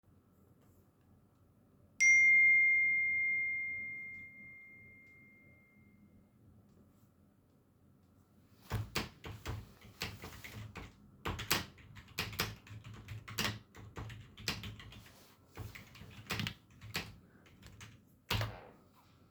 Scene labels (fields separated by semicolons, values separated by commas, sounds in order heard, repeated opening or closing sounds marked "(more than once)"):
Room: office; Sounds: phone ringing, keyboard typing